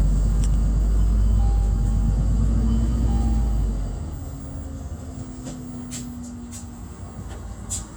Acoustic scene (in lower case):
bus